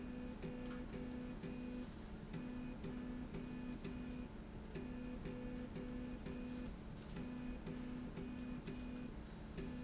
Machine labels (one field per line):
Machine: slide rail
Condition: normal